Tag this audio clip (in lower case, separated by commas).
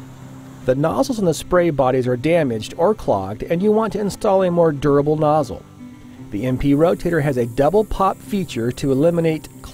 spray, music, speech